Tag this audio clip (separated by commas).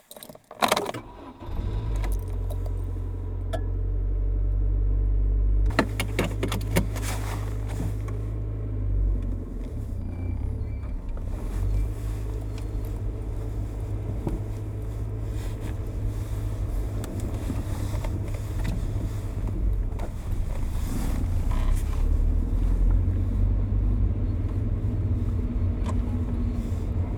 Engine, Motor vehicle (road), Engine starting, Vehicle